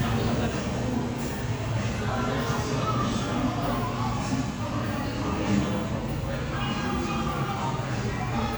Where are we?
in a crowded indoor space